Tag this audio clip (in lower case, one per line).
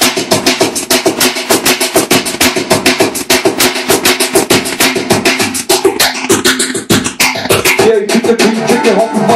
music
scratching (performance technique)